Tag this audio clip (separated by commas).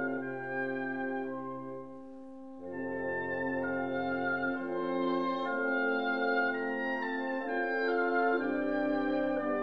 Music, Violin, Musical instrument